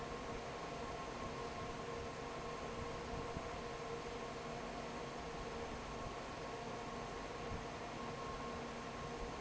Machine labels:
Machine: fan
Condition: normal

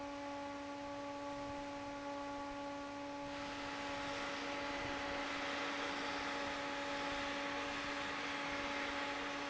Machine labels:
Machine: fan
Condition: normal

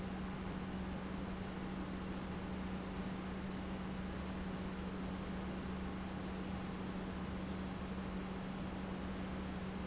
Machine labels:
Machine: pump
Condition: normal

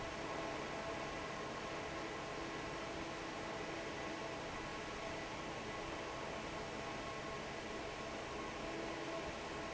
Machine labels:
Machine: fan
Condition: normal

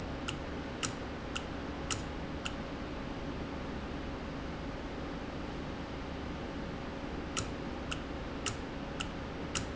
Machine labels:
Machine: valve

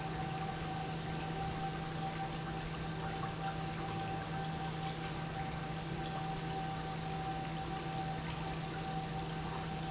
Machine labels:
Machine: pump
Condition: normal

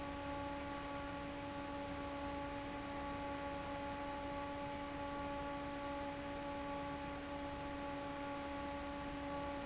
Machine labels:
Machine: fan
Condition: normal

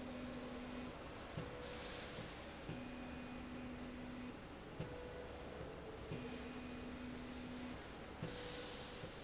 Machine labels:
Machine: slide rail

